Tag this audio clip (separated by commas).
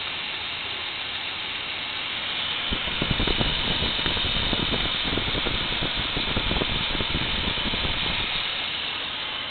Idling, Engine, Medium engine (mid frequency), Vehicle